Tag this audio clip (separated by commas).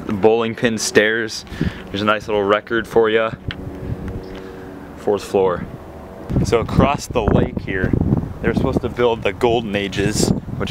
Speech